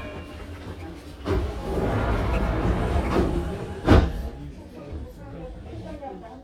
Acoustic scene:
subway train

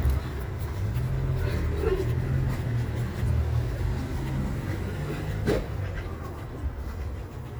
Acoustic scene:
residential area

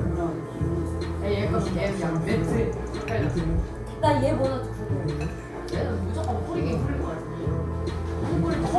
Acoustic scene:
cafe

